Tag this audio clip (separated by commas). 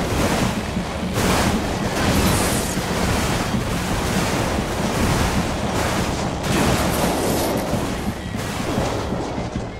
Vehicle, Music